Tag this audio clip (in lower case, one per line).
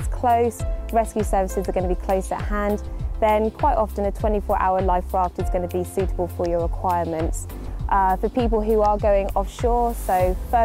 music
speech